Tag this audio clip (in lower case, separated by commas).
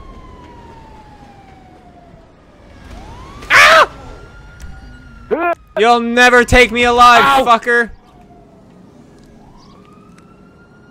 speech